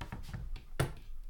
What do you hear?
wooden cupboard opening